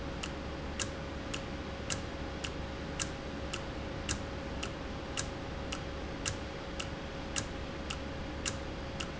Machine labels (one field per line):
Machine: valve